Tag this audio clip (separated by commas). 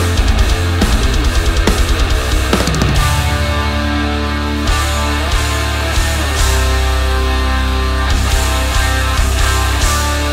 Music